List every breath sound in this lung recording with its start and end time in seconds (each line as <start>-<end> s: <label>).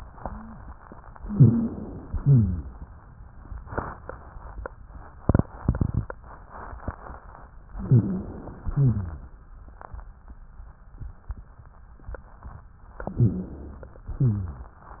1.23-2.11 s: inhalation
1.23-2.11 s: rhonchi
2.15-2.83 s: exhalation
2.15-2.83 s: rhonchi
7.74-8.60 s: inhalation
7.74-8.60 s: rhonchi
8.65-9.43 s: exhalation
8.65-9.43 s: rhonchi
13.13-14.12 s: inhalation
13.13-14.12 s: rhonchi
14.15-14.88 s: exhalation
14.15-14.88 s: rhonchi